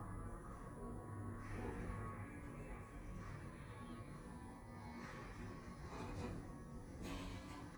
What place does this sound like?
elevator